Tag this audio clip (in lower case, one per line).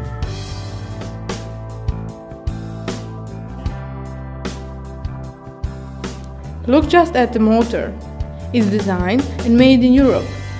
speech
music